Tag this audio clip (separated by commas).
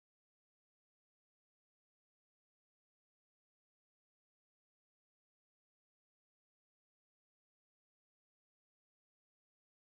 Silence